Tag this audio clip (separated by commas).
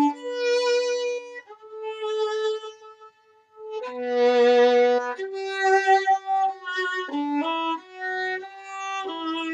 Music, fiddle, Musical instrument